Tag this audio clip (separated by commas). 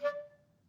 Wind instrument, Music, Musical instrument